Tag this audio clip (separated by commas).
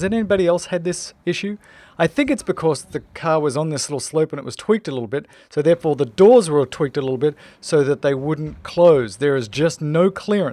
Speech